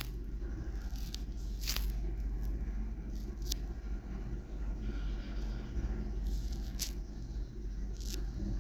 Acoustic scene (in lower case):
elevator